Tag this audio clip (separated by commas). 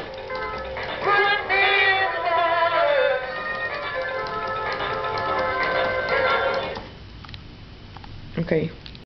Speech, Music